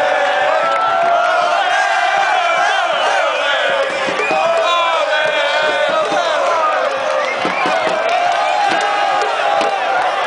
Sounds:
Speech

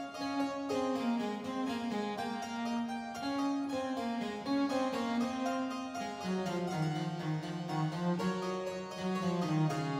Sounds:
Music, Violin, Harpsichord

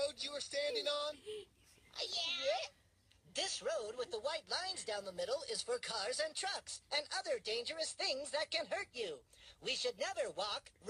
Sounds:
Speech

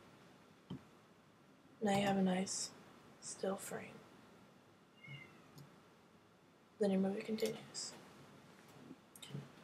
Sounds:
Speech

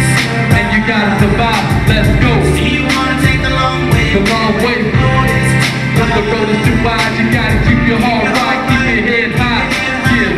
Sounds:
Music

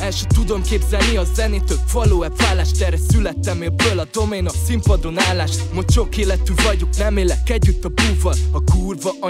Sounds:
Funk, Pop music, Music

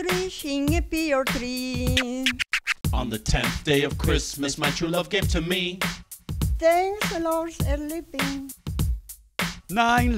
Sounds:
Singing, Music

